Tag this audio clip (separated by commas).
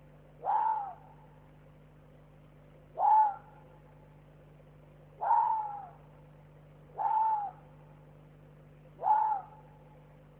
fox barking